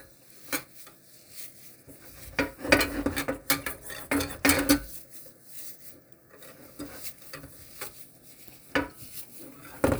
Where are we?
in a kitchen